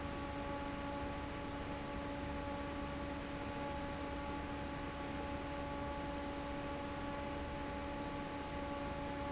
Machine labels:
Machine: fan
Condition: normal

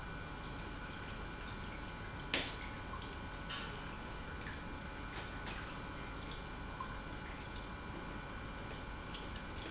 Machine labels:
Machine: pump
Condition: normal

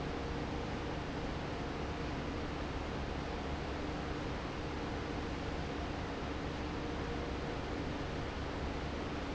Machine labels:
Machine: fan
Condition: normal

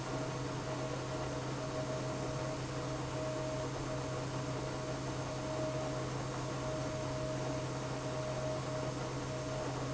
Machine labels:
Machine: pump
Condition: abnormal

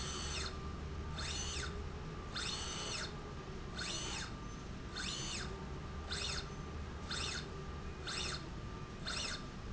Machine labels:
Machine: slide rail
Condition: normal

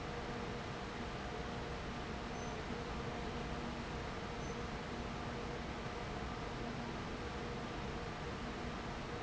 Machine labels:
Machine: fan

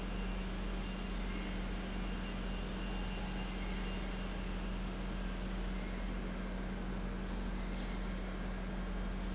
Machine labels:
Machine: pump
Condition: normal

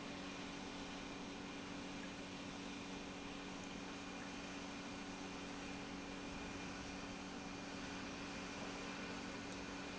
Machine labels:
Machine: pump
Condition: normal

